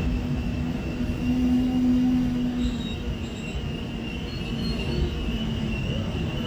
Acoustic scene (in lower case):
subway train